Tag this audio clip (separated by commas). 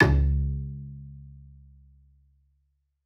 Bowed string instrument, Musical instrument, Music